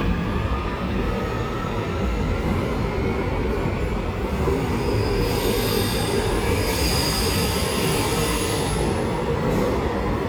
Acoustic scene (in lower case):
subway station